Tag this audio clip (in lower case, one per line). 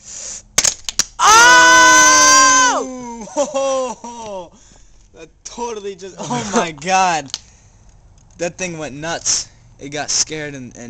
speech